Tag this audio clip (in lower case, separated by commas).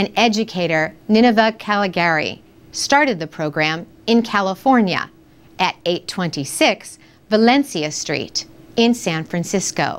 speech